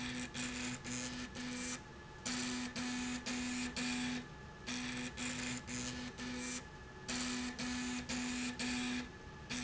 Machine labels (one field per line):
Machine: slide rail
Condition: abnormal